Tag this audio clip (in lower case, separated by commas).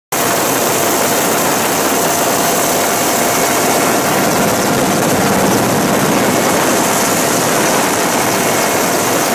propeller, outside, rural or natural